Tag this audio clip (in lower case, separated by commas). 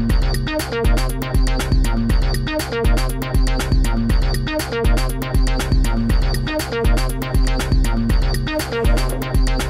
music